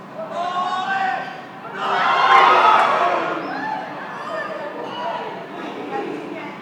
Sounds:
human voice
human group actions
cheering

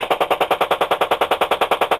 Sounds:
gunshot
explosion

